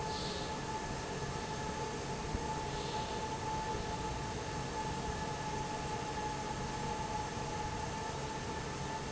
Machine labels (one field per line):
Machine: fan